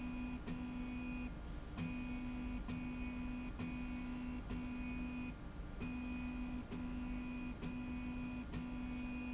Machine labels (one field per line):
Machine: slide rail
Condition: normal